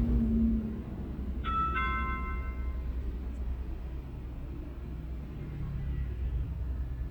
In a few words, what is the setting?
car